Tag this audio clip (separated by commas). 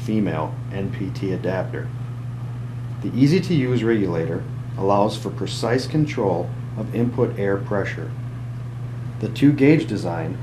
Speech